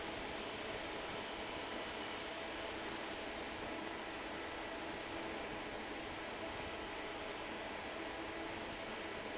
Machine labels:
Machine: fan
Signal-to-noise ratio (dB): 6 dB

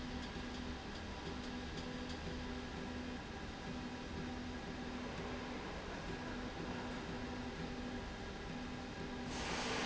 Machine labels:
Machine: slide rail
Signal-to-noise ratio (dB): 0 dB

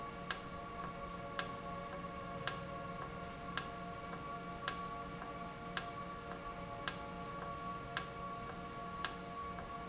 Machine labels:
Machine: valve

